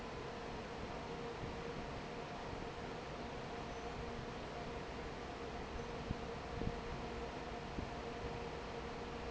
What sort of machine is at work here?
fan